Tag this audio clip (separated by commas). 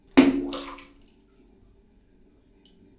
splatter, Liquid